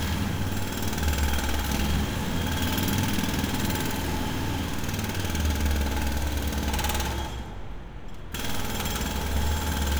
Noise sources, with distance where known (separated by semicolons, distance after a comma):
jackhammer, near